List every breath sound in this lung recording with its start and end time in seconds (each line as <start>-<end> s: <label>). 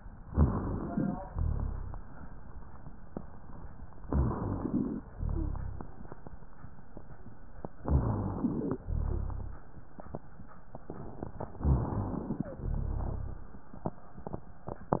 0.23-1.24 s: inhalation
0.23-1.24 s: rhonchi
1.25-2.07 s: exhalation
1.25-2.07 s: rhonchi
4.00-5.01 s: inhalation
4.00-5.01 s: rhonchi
5.12-5.94 s: exhalation
5.12-5.94 s: rhonchi
7.84-8.84 s: inhalation
7.84-8.84 s: rhonchi
8.86-9.68 s: exhalation
8.86-9.68 s: rhonchi
11.59-12.60 s: inhalation
11.59-12.60 s: rhonchi
12.66-13.64 s: exhalation
12.66-13.64 s: rhonchi